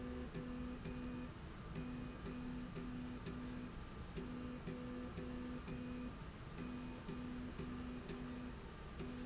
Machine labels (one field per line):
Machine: slide rail